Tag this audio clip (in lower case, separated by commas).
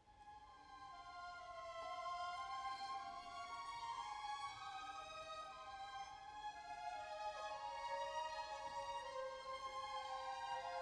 orchestra, musical instrument, music, violin